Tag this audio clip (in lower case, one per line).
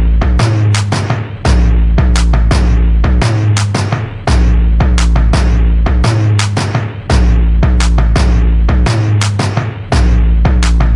soundtrack music
music